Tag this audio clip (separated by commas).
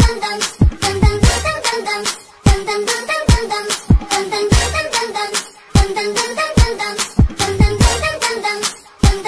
Music